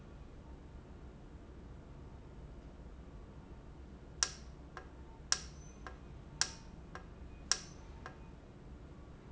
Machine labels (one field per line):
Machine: valve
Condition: normal